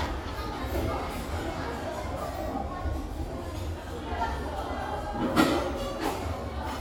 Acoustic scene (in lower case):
restaurant